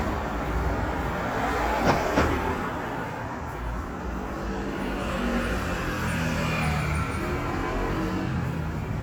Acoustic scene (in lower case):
street